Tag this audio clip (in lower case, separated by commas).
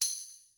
percussion, music, tambourine, musical instrument